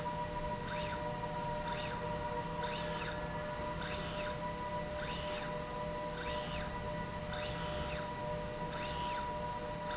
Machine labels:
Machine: slide rail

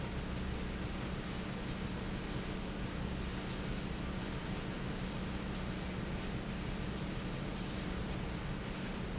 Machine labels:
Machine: fan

